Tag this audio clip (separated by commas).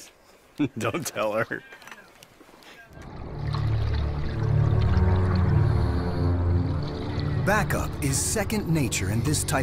Music, Speech